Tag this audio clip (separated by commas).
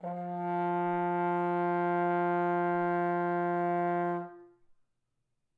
Musical instrument, Music, Brass instrument